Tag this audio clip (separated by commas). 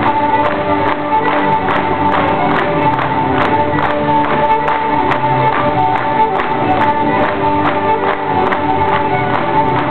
Music